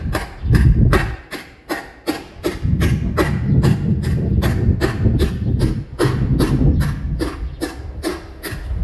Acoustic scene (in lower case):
residential area